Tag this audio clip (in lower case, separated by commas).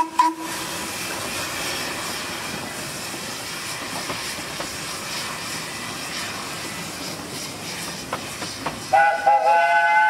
rail transport, vehicle, train wagon, train